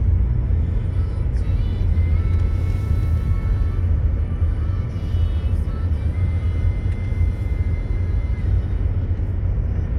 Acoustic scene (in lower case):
car